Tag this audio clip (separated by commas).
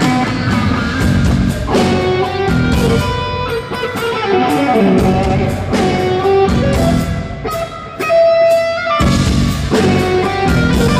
Guitar, Musical instrument, Music, Electric guitar, Plucked string instrument